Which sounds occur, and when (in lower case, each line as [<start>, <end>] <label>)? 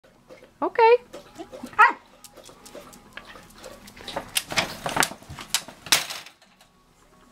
[0.00, 7.31] mechanisms
[0.00, 7.31] music
[0.57, 0.96] woman speaking
[1.78, 1.93] bark
[5.31, 6.67] generic impact sounds